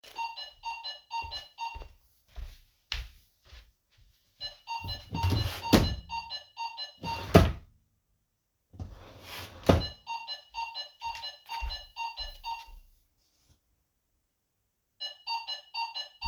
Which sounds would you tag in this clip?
bell ringing, footsteps, wardrobe or drawer